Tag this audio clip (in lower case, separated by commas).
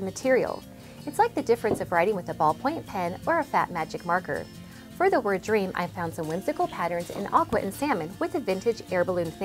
music, speech